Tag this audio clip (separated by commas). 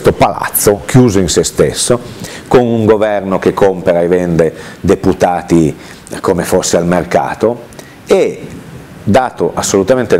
Speech